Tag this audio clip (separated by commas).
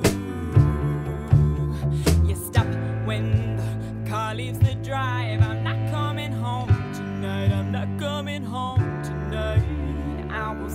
Music